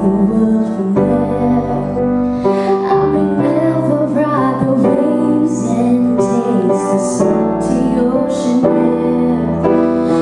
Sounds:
Music, Female singing

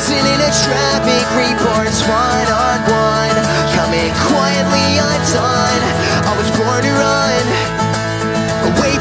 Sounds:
Music

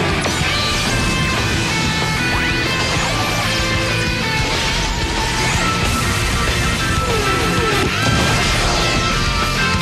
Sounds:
Music

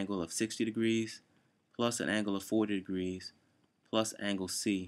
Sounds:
Speech

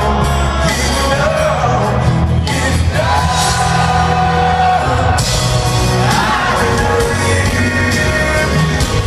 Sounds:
Music

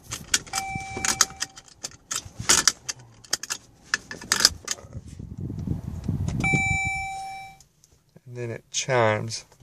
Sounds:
Speech, Keys jangling, outside, urban or man-made

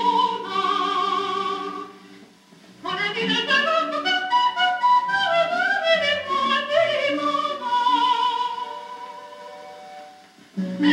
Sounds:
Music

